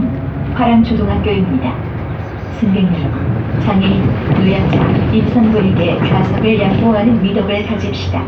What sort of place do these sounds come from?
bus